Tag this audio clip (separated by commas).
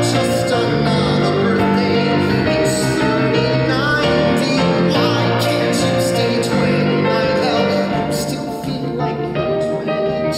Music